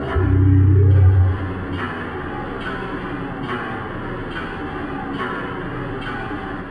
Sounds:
Mechanisms

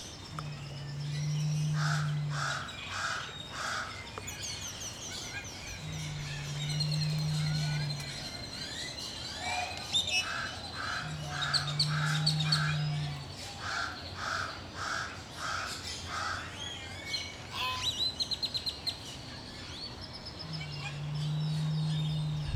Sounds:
Animal, Wild animals, Bird, Crow

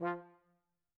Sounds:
Musical instrument, Music, Brass instrument

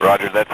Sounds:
Male speech, Speech, Human voice

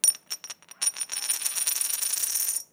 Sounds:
Domestic sounds, Coin (dropping)

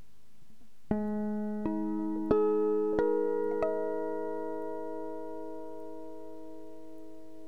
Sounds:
Music, Plucked string instrument, Guitar, Musical instrument

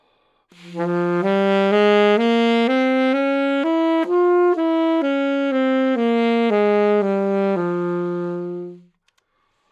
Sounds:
Musical instrument, Wind instrument, Music

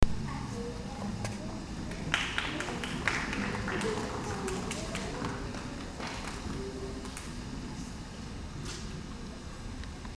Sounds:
Human group actions, Applause

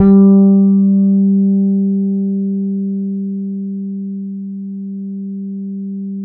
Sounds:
Guitar, Bass guitar, Music, Plucked string instrument, Musical instrument

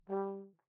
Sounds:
Music, Musical instrument, Brass instrument

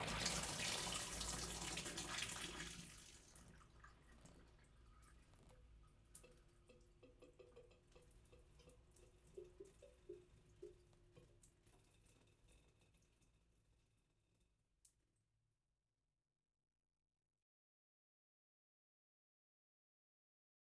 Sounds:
Liquid, Drip, Domestic sounds, Sink (filling or washing)

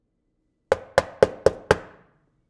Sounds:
Door, Domestic sounds, Knock, Wood

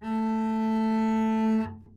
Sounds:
Bowed string instrument, Musical instrument, Music

